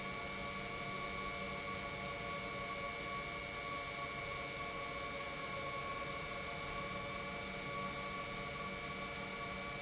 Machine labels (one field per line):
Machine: pump